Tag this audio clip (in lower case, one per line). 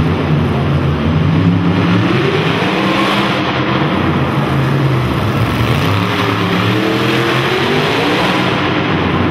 car
motor vehicle (road)
skidding
vehicle